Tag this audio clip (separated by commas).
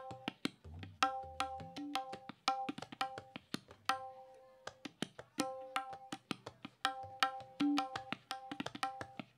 Wood block, Music, Musical instrument